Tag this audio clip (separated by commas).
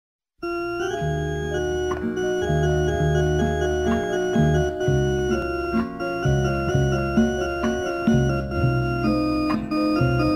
Music